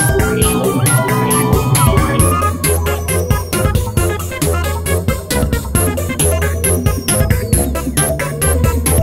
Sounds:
Music

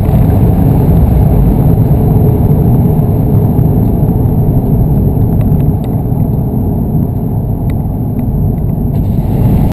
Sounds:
Vehicle, Motor vehicle (road)

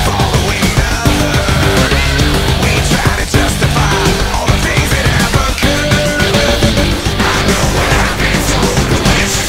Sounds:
Music

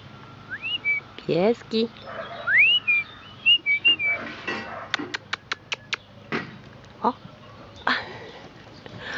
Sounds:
bird song, Chirp, Bird

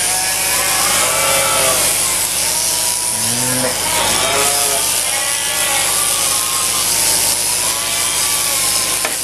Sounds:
sheep bleating, Sheep, Bleat

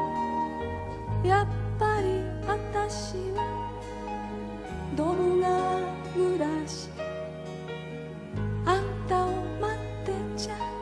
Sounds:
Music, Singing

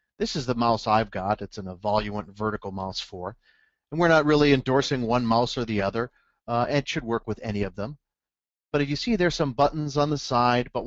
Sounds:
Speech

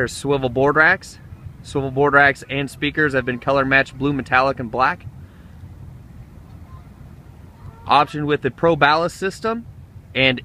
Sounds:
Speech

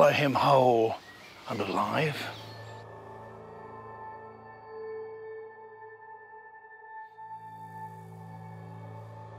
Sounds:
Music, outside, rural or natural, Speech

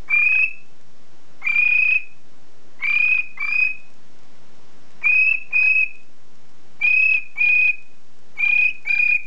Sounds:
Bird

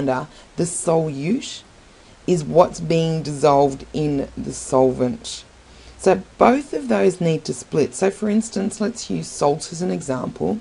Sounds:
Gurgling, Speech

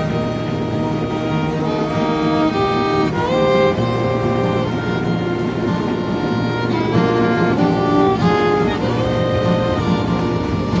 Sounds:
Music

